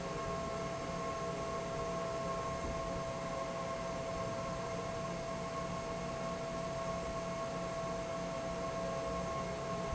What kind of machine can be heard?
fan